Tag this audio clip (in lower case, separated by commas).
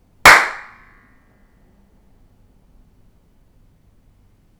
hands, clapping